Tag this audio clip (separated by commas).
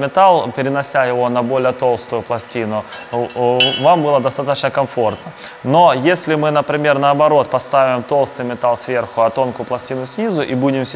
arc welding